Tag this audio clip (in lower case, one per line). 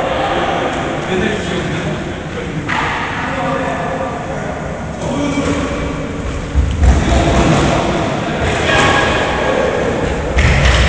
playing squash